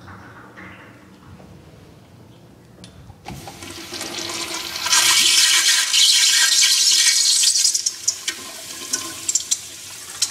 A toilet flushing very loudly and nearby